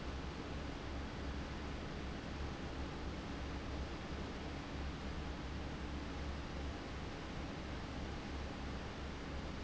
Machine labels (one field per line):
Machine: fan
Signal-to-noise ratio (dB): 0 dB